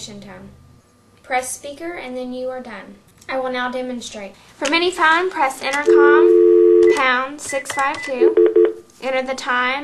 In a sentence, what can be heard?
An young female speaks,and electronic dial tone and electronic beeps and clicks occur